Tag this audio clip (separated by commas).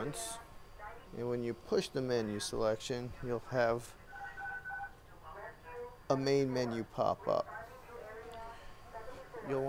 Speech